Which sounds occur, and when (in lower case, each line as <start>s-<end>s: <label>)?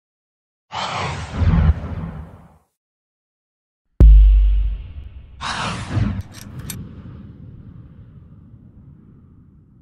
0.7s-2.7s: sound effect
3.9s-9.8s: sound effect
6.2s-6.5s: clicking
6.6s-6.8s: clicking